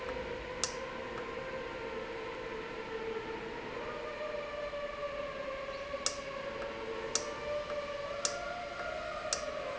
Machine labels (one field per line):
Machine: valve